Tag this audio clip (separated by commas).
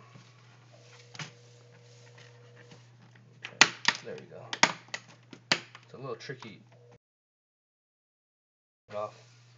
Speech